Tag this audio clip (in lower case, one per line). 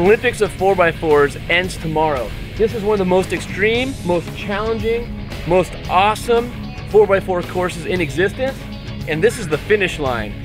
music
speech